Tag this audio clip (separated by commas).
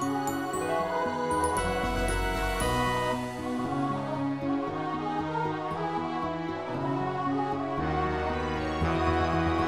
Music